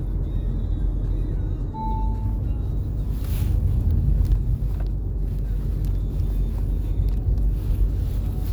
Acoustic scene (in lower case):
car